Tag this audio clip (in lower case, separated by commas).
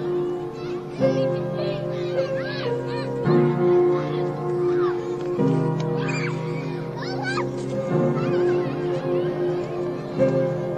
child speech, speech, music